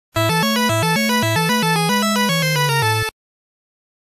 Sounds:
music

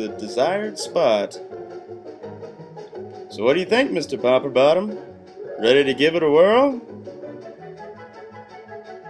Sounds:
speech

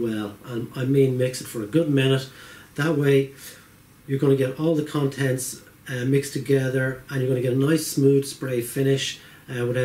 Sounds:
speech

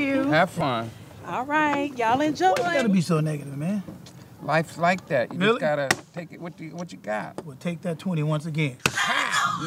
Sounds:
speech

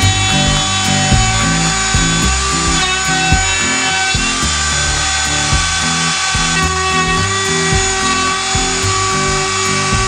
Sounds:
wood
music

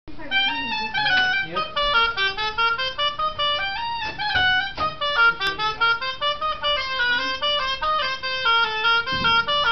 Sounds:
playing oboe

